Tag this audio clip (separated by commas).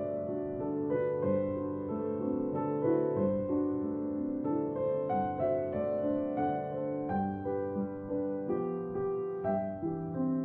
Music